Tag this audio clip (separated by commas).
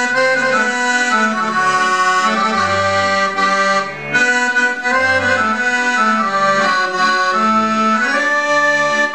playing accordion, Accordion